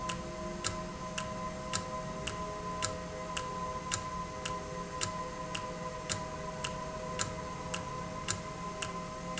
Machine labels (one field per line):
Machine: valve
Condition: normal